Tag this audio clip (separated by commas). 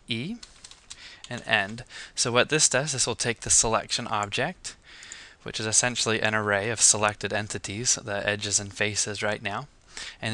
Speech